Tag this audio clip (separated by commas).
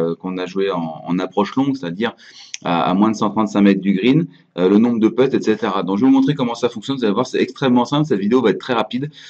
Speech